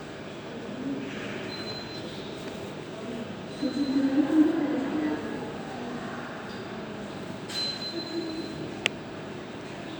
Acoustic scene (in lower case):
subway station